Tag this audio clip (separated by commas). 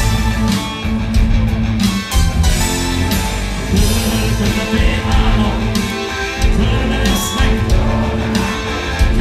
Funk, Music, Soul music